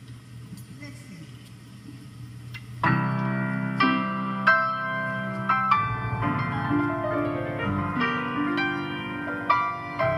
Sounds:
woman speaking
music
happy music
tender music
speech

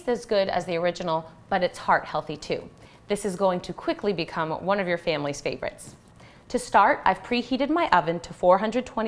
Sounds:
speech

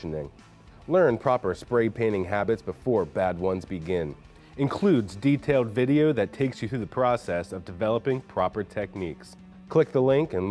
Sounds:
music
speech

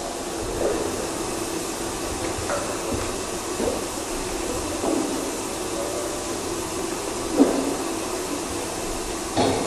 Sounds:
inside a large room or hall

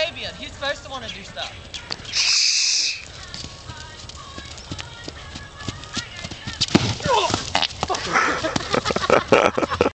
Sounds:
clip-clop
animal
speech
horse
music

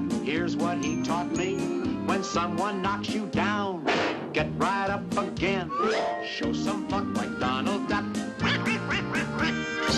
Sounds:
music
quack

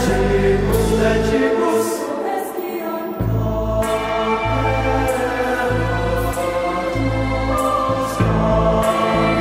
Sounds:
music

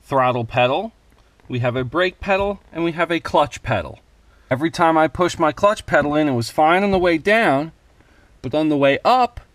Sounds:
speech

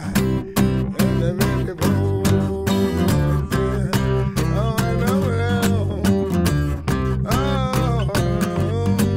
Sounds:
music

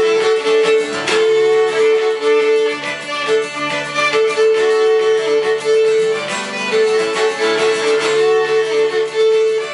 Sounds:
plucked string instrument
music
musical instrument
violin
acoustic guitar
guitar

